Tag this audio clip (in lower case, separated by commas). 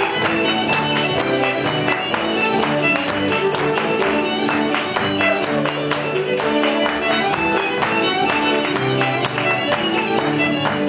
tender music, music